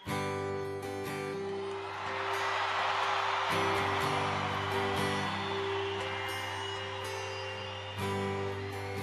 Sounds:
music

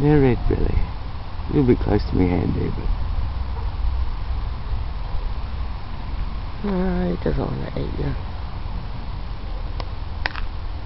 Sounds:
speech, outside, rural or natural

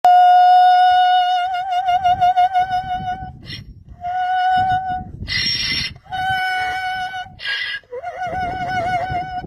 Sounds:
ass braying

